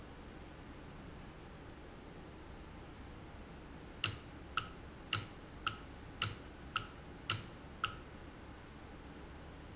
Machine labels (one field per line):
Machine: valve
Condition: normal